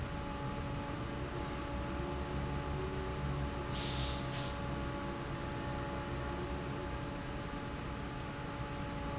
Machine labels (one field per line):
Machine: fan